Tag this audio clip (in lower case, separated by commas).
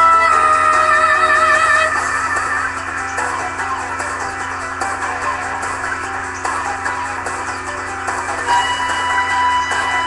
fiddle, music, musical instrument